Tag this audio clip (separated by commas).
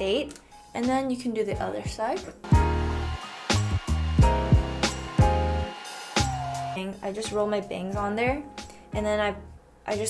hair dryer drying